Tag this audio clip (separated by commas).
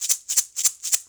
Music, Rattle (instrument), Percussion, Musical instrument